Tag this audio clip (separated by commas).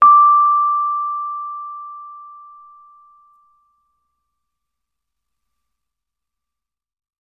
Piano, Music, Musical instrument, Keyboard (musical)